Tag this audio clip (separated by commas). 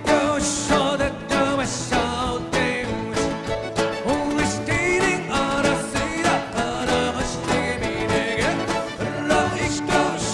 Musical instrument, Acoustic guitar, Strum, Guitar, Flamenco, Music of Latin America, Music, Plucked string instrument